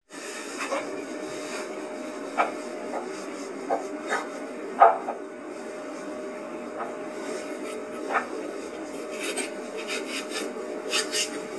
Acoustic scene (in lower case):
kitchen